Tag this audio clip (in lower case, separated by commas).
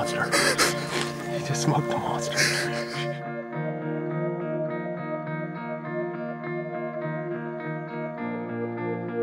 speech, music